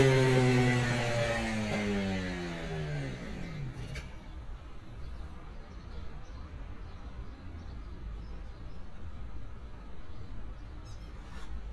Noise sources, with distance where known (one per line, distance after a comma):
small-sounding engine, near